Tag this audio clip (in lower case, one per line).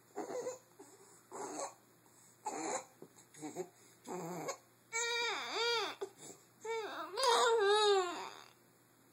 infant cry
people sobbing
sobbing